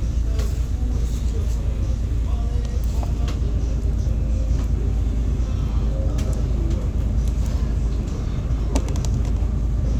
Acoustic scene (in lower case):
bus